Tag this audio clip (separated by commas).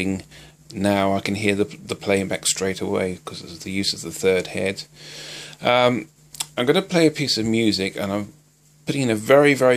Speech